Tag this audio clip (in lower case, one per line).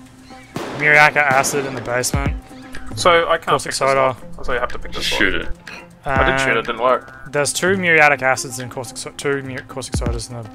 speech
music